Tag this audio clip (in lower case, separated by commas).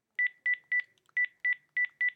alarm, telephone